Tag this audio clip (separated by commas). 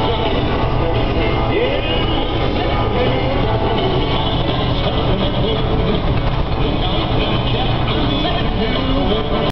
Radio, Music